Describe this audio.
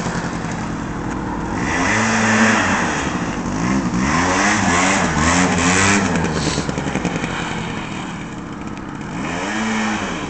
An engine idles then revs a few times